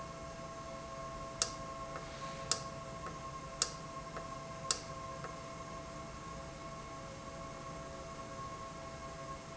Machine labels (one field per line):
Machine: valve